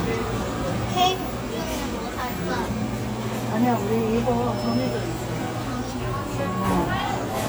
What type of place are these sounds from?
cafe